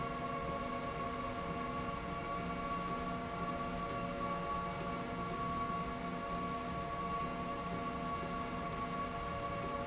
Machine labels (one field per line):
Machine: slide rail